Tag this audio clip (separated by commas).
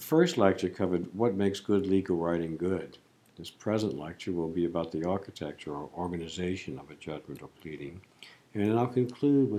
Speech